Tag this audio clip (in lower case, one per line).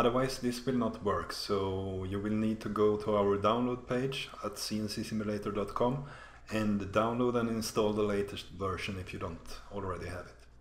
speech